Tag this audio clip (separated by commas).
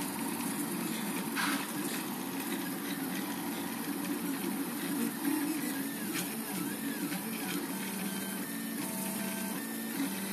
printer printing